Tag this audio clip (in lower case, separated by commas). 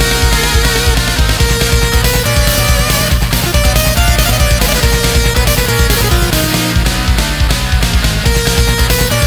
exciting music, soundtrack music, music